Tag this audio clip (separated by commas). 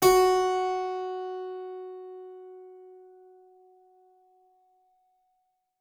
Music, Musical instrument, Keyboard (musical)